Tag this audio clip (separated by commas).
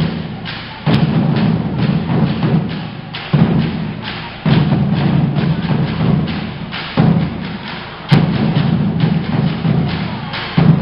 Music, Speech